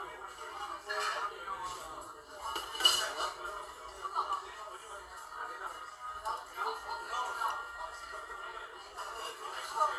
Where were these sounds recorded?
in a crowded indoor space